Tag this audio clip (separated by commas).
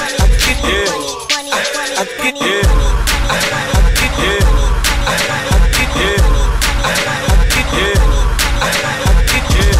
Funk, Pop music, Dance music, Music